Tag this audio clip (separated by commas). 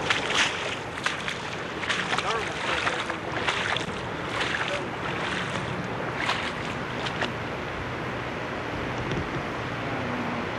Speech